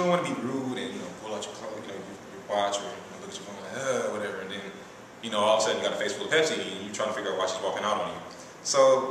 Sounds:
speech

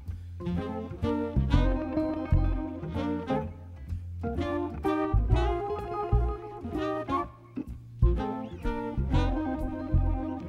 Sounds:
music

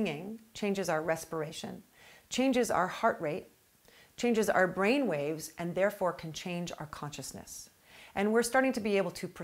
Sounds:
speech

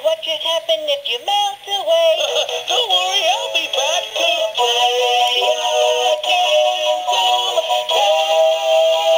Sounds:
music

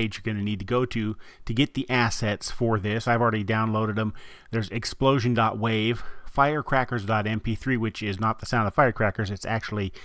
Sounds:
speech

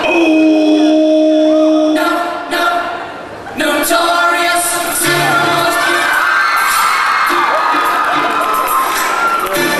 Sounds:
music, shout, cheering

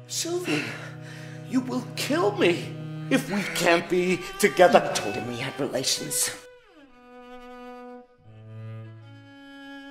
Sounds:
speech, music

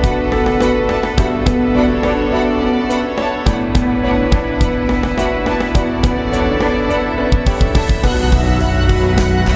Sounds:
music

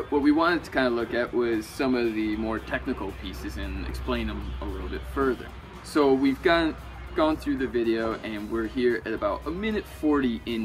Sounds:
speech, music

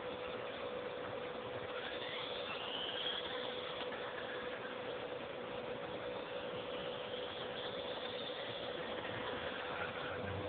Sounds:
outside, urban or man-made

